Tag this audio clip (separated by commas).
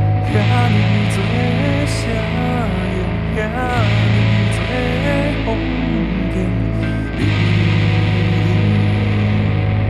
Music